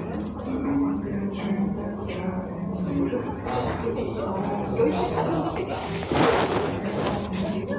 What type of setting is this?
cafe